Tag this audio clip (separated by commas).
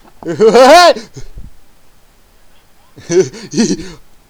Human voice, Laughter